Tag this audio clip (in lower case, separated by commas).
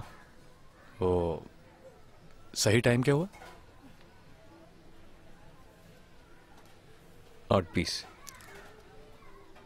speech